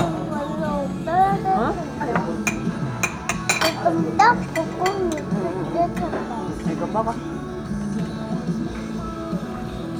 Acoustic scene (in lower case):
restaurant